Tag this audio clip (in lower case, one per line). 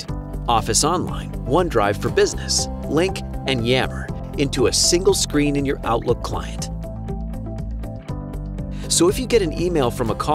speech
music